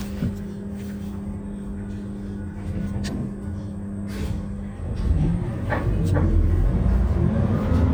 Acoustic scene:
bus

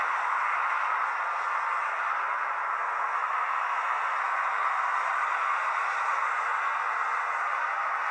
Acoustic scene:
street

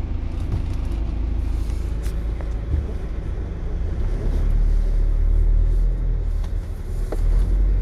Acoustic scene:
car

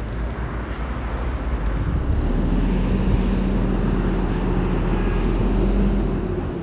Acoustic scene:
street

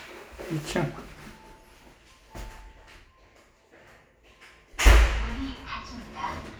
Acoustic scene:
elevator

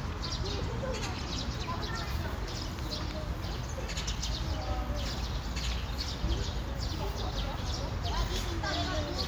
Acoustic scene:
park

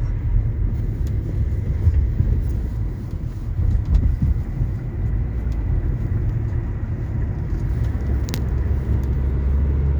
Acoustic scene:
car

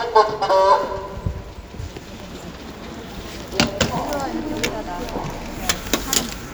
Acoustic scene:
subway station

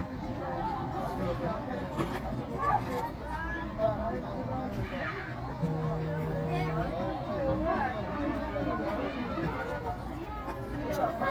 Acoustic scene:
park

